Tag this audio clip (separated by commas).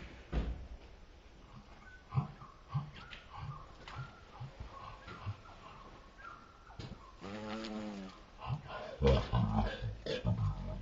bee or wasp